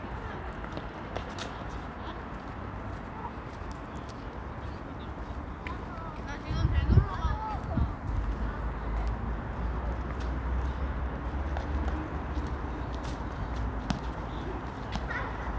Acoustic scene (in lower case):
residential area